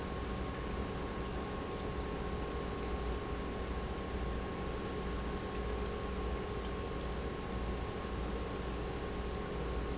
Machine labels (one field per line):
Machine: pump